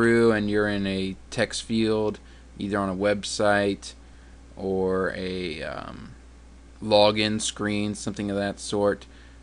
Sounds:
Speech

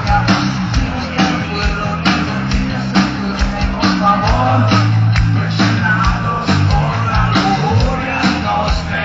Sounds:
Male singing, Music

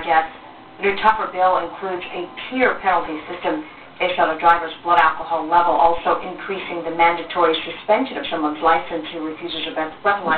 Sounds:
Speech

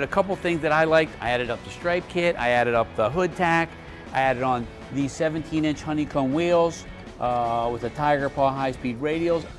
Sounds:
Music, Speech

